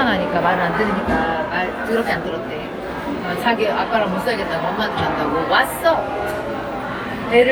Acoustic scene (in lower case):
crowded indoor space